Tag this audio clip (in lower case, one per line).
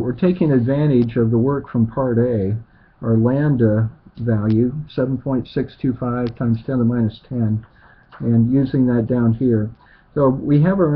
speech